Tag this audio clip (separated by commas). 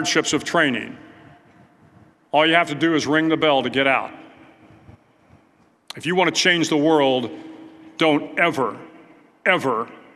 Speech